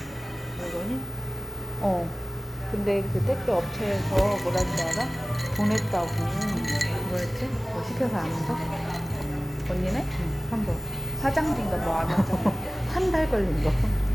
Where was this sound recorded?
in a cafe